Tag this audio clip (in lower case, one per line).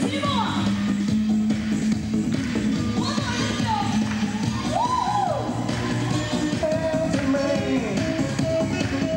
music
speech